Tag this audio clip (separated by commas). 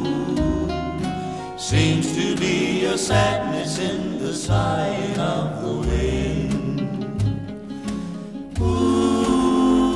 Music